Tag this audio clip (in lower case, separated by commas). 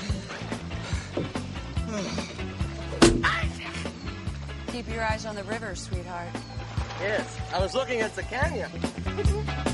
speech, music